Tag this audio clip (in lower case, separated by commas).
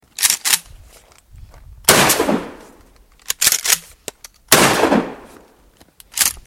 explosion, gunshot